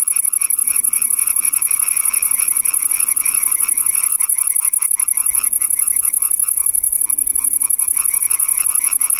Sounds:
Frog

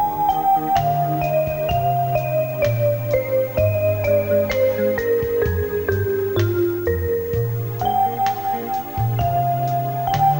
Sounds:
Music

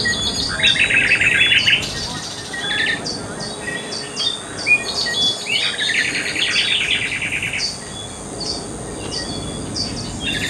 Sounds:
Speech

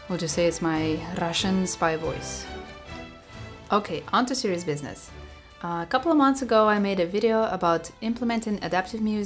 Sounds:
Music, Speech

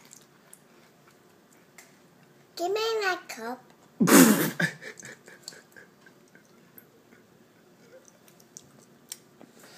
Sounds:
Child speech, inside a small room, Speech

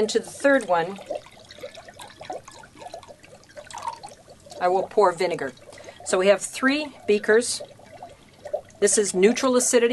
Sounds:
Speech, Pour

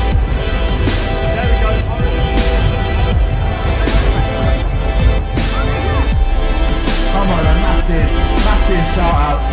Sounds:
Speech, Music

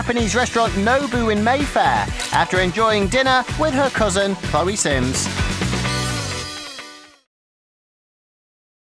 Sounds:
Music, Speech

